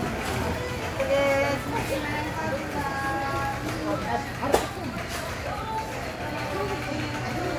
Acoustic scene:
crowded indoor space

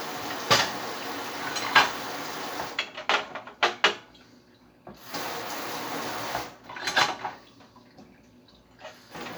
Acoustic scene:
kitchen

